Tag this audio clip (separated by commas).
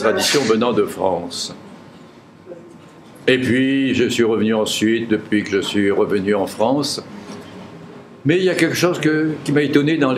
Speech